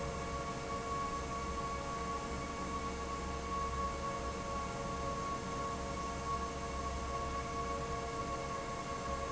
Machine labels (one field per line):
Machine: fan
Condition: normal